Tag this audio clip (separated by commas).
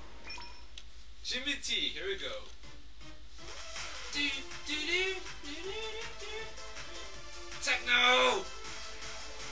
Speech, Music